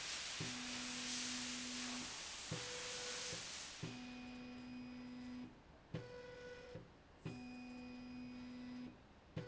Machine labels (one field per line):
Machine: slide rail